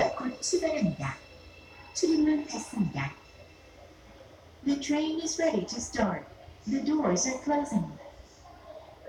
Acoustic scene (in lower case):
subway train